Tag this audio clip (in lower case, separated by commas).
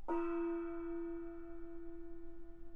gong, musical instrument, percussion, music